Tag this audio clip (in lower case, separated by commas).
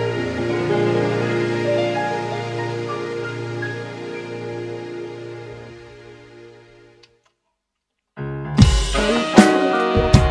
musical instrument, drum kit, music, bass drum, guitar, drum, electric guitar